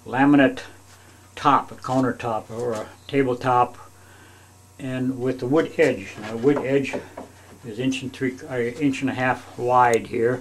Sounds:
Speech

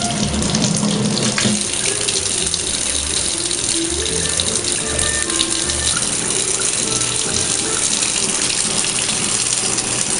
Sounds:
Water tap, Water, Sink (filling or washing)

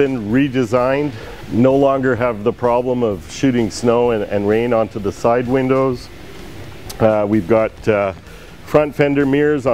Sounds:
Music, Speech

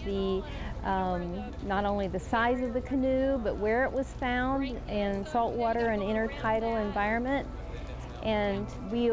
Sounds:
Water vehicle, Vehicle, Speech

